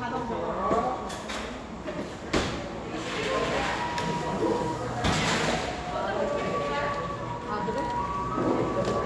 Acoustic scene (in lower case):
cafe